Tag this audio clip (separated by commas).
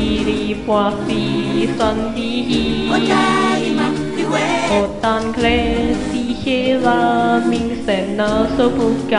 A capella